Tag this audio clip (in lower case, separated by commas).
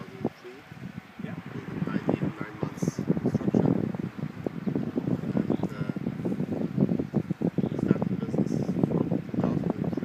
speech